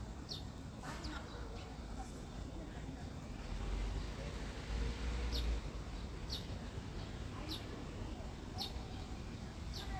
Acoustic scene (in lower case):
residential area